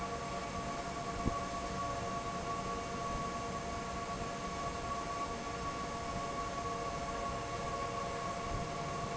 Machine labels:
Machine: fan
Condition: normal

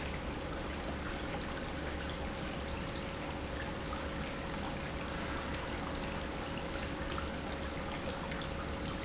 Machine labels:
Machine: pump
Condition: normal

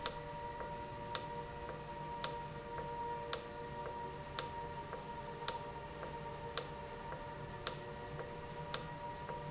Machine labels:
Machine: valve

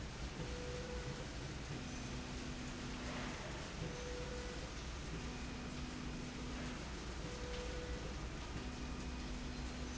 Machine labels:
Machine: slide rail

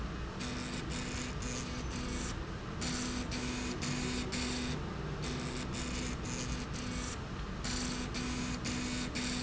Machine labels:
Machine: slide rail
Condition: abnormal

